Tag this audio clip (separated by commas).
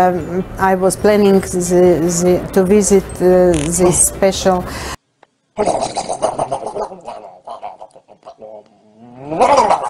Speech